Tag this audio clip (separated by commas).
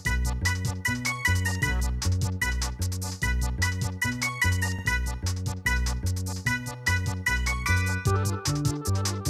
Music